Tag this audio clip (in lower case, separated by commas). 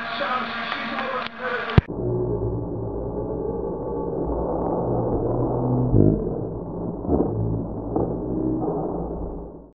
speech